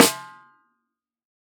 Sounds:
musical instrument
music
drum
percussion
snare drum

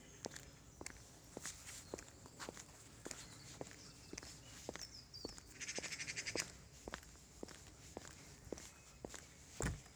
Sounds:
wild animals
animal
bird
bird vocalization
footsteps

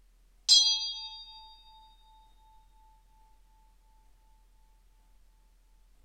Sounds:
bell

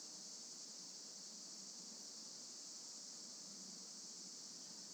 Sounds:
wild animals
animal
insect
cricket

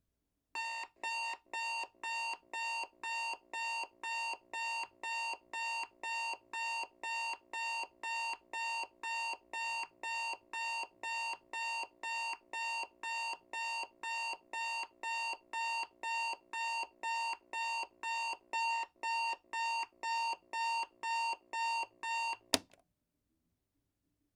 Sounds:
alarm

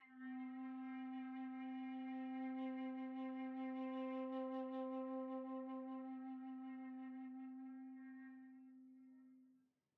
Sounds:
wind instrument
music
musical instrument

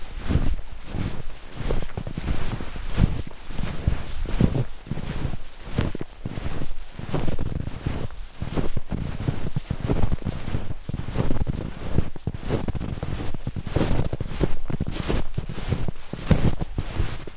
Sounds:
footsteps

